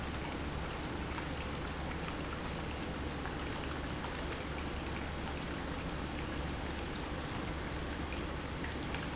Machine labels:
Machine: pump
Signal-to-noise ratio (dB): -6 dB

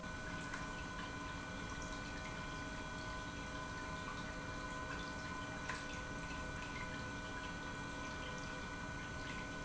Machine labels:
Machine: pump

